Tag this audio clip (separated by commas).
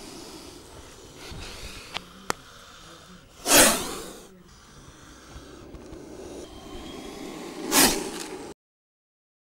snake hissing